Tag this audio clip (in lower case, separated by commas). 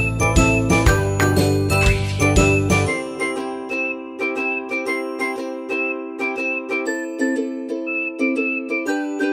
glass, tinkle, whistling, music, music for children